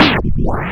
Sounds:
Scratching (performance technique), Musical instrument, Music

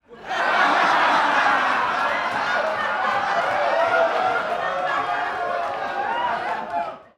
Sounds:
Human voice, Laughter

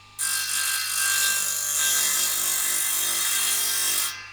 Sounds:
Sawing, Tools

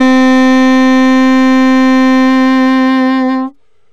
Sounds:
Music, Wind instrument, Musical instrument

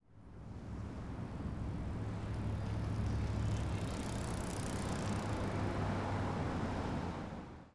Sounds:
Vehicle, Bicycle

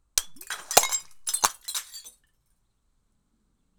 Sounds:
Shatter, Glass

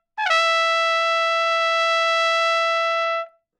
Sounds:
Music, Trumpet, Musical instrument, Brass instrument

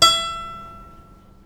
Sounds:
Music, Musical instrument, Bowed string instrument

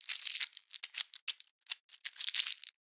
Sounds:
crinkling

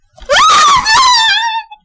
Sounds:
Human voice, Screaming

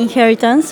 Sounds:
Human voice, Speech

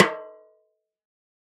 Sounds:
Percussion, Snare drum, Drum, Musical instrument, Music

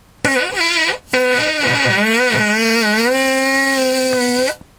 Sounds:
Fart

